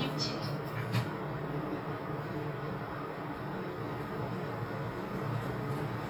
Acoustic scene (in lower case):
elevator